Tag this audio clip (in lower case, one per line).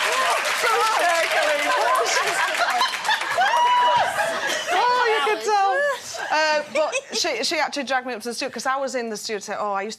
speech
female speech